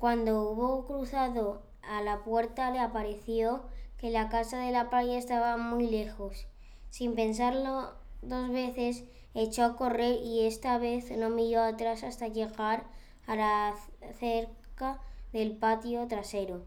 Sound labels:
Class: speech